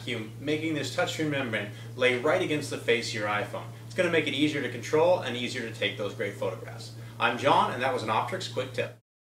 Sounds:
speech

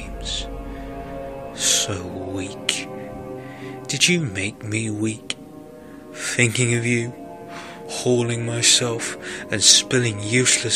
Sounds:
speech
monologue
music

